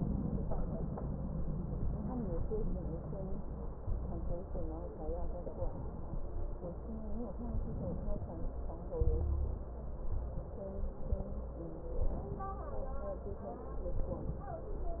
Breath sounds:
7.50-8.45 s: inhalation
8.95-9.65 s: exhalation
8.95-9.65 s: crackles

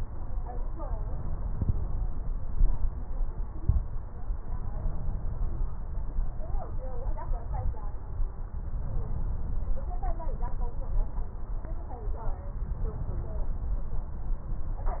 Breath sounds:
8.83-9.96 s: inhalation
12.61-13.73 s: inhalation

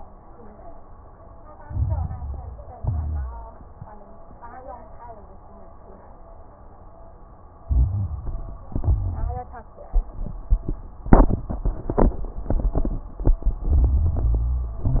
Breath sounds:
1.61-2.73 s: inhalation
1.61-2.73 s: crackles
2.77-3.49 s: exhalation
2.77-3.49 s: crackles
7.66-8.66 s: inhalation
7.66-8.66 s: crackles
8.72-9.52 s: exhalation
8.72-9.52 s: crackles
13.64-14.82 s: inhalation
13.65-14.78 s: crackles
14.80-15.00 s: exhalation
14.80-15.00 s: crackles

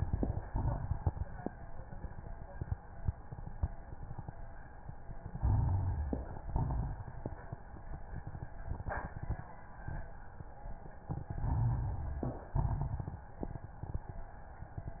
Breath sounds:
0.42-1.35 s: exhalation
5.37-6.38 s: inhalation
5.37-6.38 s: crackles
6.51-7.51 s: exhalation
6.51-7.51 s: crackles
11.31-12.49 s: inhalation
11.31-12.49 s: crackles
12.60-13.36 s: exhalation
12.60-13.36 s: crackles

